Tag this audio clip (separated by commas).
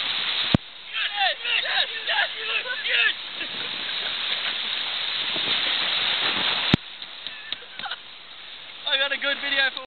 Speech, Stream